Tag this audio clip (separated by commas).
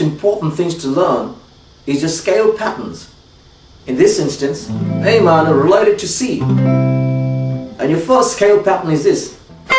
Guitar, inside a small room, Speech, Musical instrument, Music, Plucked string instrument